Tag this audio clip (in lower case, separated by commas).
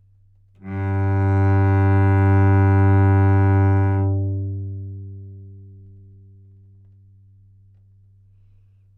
bowed string instrument, musical instrument, music